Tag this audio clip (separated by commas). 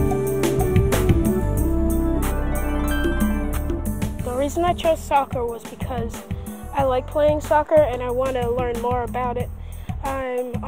Music, Speech